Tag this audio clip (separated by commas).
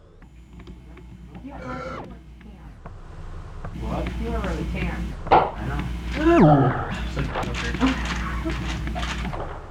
Speech, Conversation, Human voice